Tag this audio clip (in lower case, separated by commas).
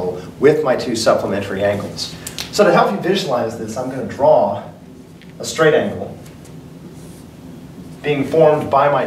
speech, writing